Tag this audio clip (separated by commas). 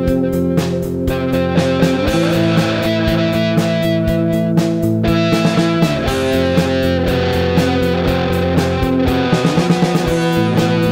Music, Rock music